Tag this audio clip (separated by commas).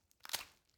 Crack